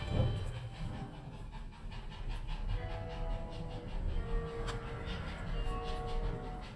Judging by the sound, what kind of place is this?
elevator